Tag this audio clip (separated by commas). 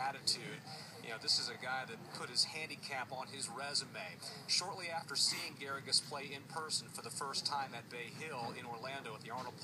Speech